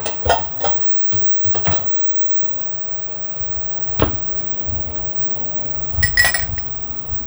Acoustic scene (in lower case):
kitchen